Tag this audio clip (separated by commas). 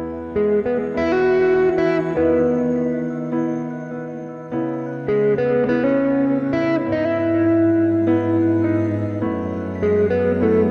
Musical instrument, Acoustic guitar, Music, Electric guitar, Plucked string instrument, Guitar, Strum